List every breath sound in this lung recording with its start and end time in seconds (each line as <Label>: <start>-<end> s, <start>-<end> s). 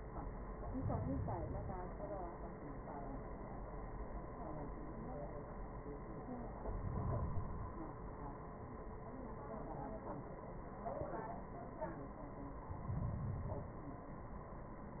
Inhalation: 0.46-1.92 s, 6.47-7.99 s, 12.62-14.13 s